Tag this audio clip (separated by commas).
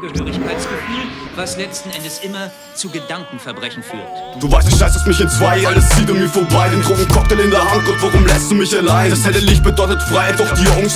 Speech, Music